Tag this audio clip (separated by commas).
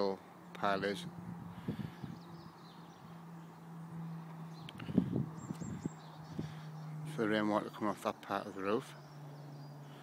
Speech